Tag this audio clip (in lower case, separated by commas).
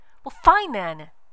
speech, woman speaking, human voice